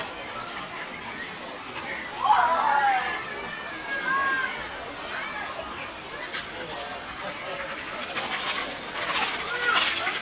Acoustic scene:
park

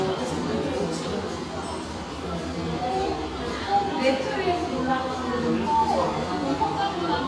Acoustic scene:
cafe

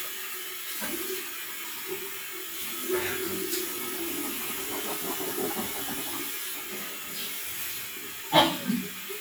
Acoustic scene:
restroom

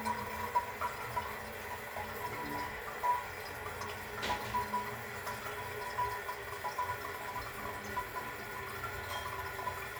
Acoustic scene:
restroom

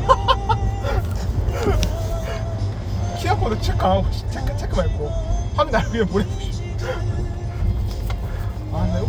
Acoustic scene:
car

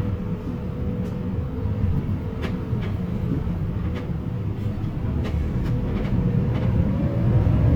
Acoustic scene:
bus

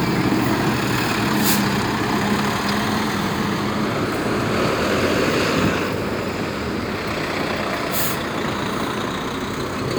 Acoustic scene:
street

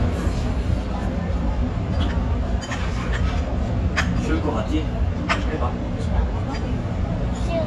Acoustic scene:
restaurant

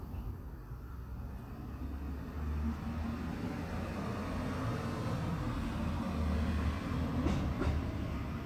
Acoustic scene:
residential area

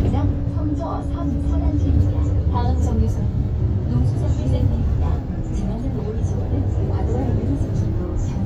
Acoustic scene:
bus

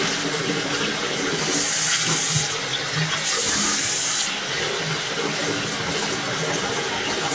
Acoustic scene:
restroom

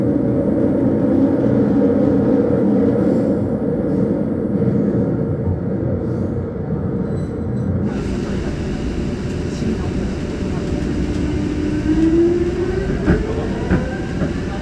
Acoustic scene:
subway train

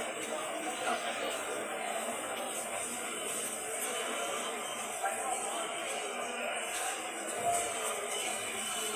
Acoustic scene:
subway station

